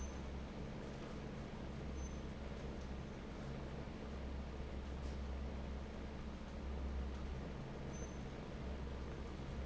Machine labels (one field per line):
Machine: fan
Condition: normal